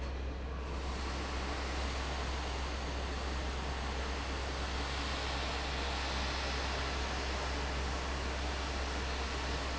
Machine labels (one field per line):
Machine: fan